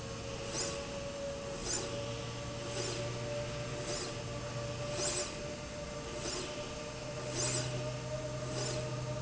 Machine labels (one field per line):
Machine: slide rail